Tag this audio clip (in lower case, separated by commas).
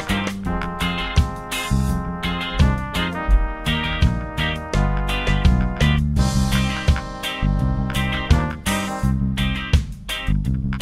music